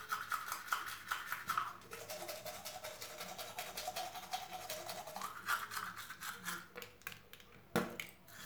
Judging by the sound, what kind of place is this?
restroom